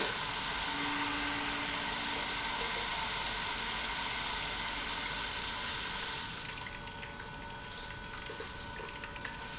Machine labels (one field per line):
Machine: pump